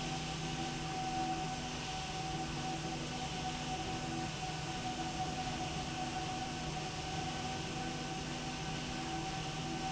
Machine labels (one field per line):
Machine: slide rail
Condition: normal